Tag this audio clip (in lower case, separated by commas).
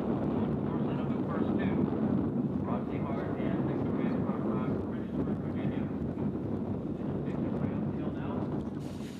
speech